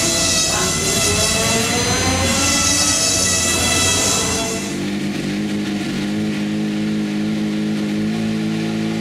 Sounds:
motor vehicle (road), vehicle, car

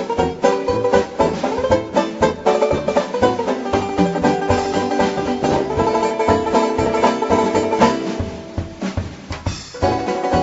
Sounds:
music

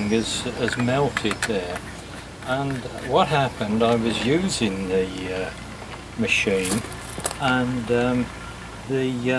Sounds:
speech

